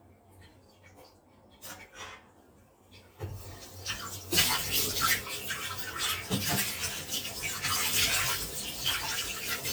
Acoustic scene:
kitchen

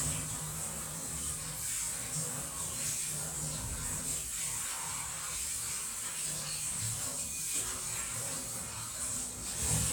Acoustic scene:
kitchen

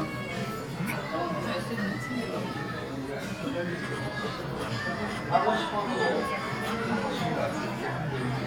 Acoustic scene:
crowded indoor space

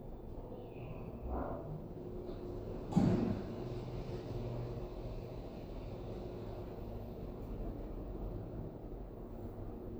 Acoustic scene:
elevator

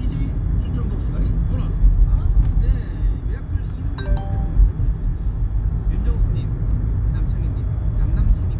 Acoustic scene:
car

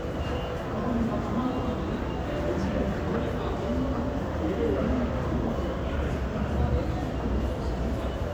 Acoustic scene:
crowded indoor space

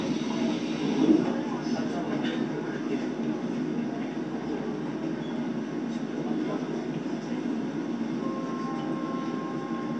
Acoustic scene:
subway train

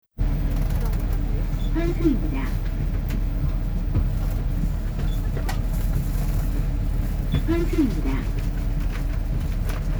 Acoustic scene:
bus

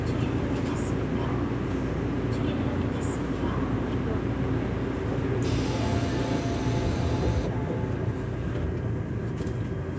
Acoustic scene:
subway train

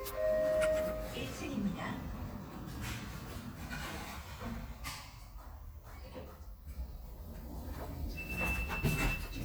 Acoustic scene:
elevator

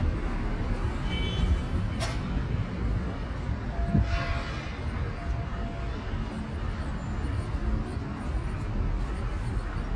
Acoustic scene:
street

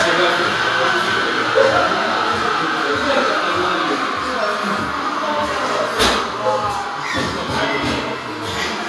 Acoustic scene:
cafe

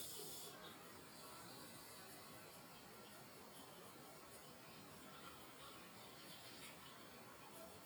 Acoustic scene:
restroom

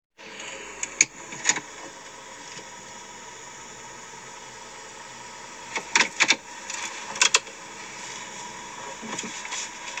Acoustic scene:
car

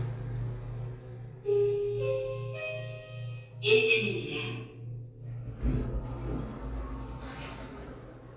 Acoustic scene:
elevator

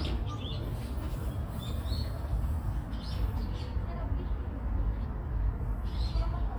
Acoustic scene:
park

